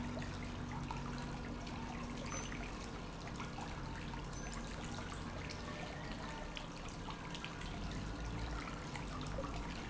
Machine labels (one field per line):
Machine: pump